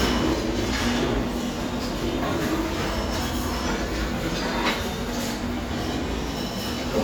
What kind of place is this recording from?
restaurant